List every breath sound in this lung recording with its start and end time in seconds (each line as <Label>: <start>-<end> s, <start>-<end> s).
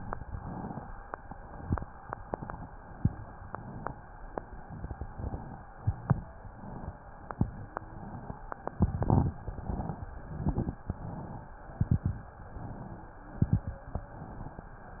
Inhalation: 0.00-0.91 s, 1.13-1.89 s, 2.13-2.89 s, 3.38-4.04 s, 4.99-5.75 s, 6.36-6.96 s, 7.45-8.33 s, 9.33-10.11 s, 10.91-11.69 s, 12.46-13.24 s, 13.94-14.72 s
Exhalation: 2.86-3.35 s, 5.78-6.25 s, 7.18-7.52 s, 8.70-9.25 s, 10.27-10.82 s, 11.75-12.30 s, 13.31-13.86 s
Crackles: 1.13-1.89 s, 2.86-3.35 s, 5.78-6.25 s, 7.18-7.52 s, 8.70-9.25 s, 10.27-10.82 s, 11.75-12.30 s, 13.31-13.86 s